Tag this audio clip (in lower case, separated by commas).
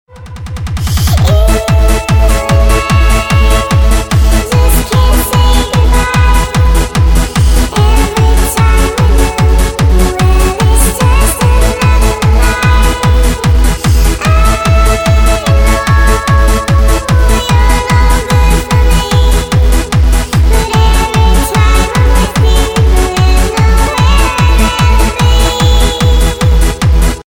human voice, singing